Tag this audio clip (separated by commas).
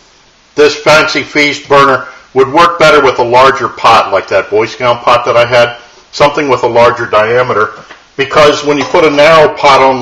Speech